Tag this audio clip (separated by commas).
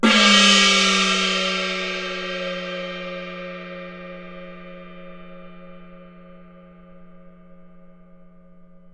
Gong, Musical instrument, Music, Percussion